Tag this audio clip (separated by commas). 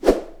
swoosh